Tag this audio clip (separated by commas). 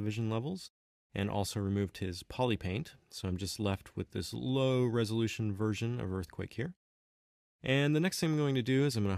Speech